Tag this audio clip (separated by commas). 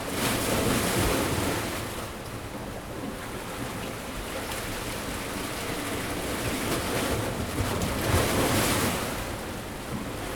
Water, surf, Ocean